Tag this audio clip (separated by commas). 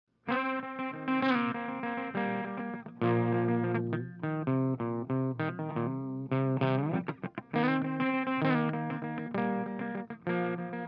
Distortion, Music